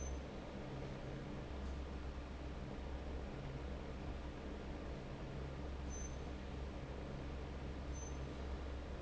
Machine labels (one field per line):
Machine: fan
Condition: normal